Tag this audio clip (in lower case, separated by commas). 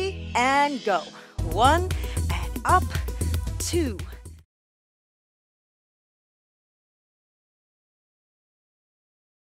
speech, music